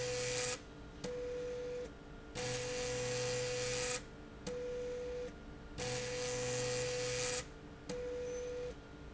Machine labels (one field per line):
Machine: slide rail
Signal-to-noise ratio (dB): 6 dB